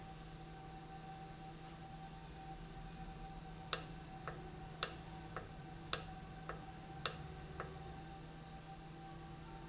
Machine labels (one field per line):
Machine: valve